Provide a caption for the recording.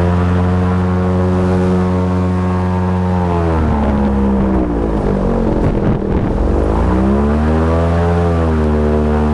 Boat engine riding in the water